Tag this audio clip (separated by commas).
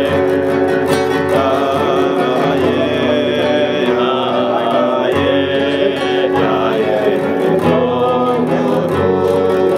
Male singing, Music, Speech